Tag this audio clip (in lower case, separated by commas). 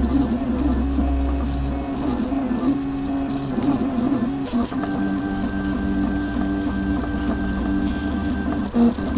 printer